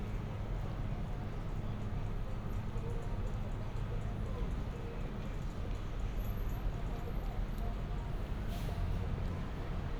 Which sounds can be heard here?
engine of unclear size, music from an unclear source